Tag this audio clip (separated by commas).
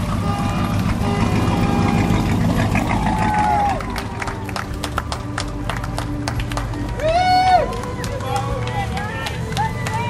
Vehicle, Music, Speech, Water vehicle, speedboat